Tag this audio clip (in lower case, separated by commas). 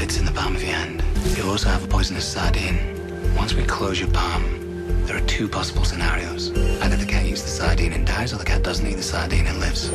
speech, music